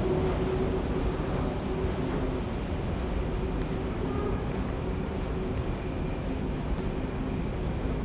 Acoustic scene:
subway station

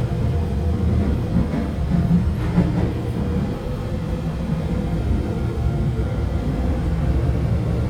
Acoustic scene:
subway train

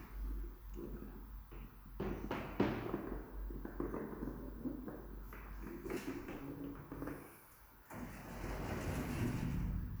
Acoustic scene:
elevator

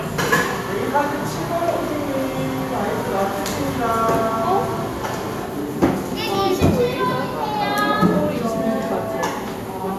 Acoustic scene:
cafe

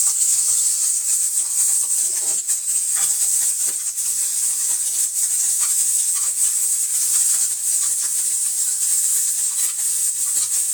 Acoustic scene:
kitchen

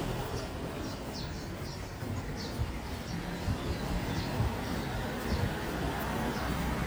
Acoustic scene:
residential area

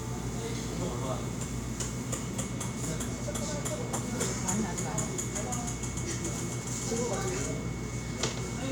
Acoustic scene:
cafe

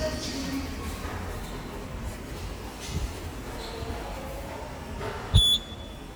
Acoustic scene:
subway station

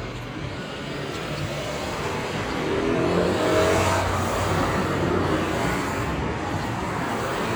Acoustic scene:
street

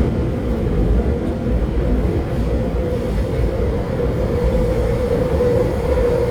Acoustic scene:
subway train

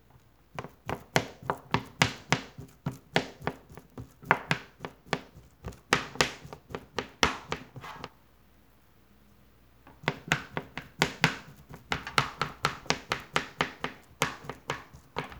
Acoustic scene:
kitchen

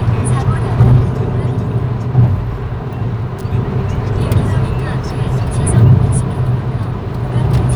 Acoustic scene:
car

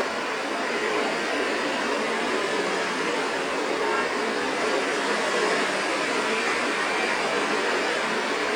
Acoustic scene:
street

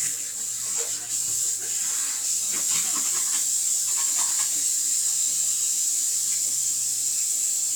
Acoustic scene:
restroom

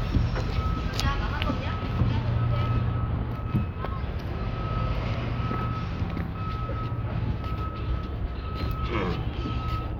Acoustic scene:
residential area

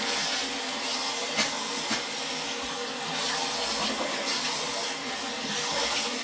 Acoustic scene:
restroom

